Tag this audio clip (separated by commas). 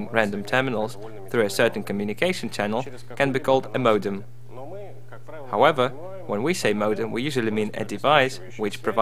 Speech